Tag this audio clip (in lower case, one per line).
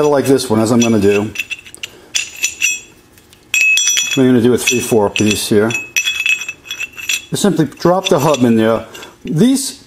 speech